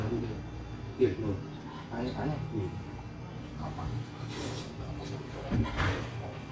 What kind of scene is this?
restaurant